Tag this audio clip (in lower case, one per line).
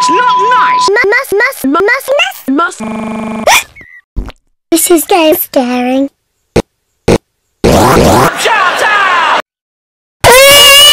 speech